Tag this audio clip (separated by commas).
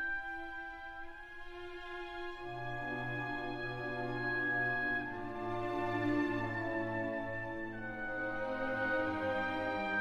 Music